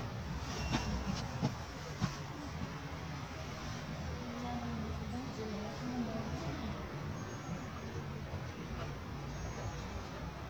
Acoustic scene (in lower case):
residential area